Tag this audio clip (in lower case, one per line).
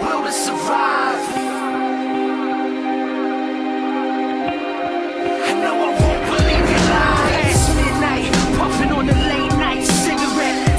music